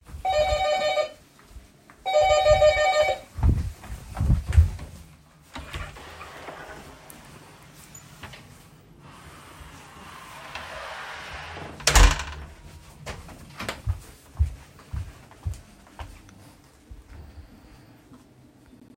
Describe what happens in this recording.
Someone rang the doorbell two times while I was in the kitchen. I walked to the door, opened it, let the person in, closed the door, and returned to the kitchen.